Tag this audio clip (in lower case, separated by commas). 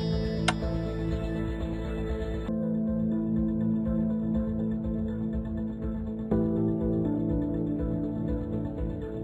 music